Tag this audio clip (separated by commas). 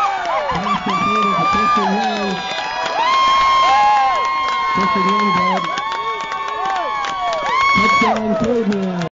Speech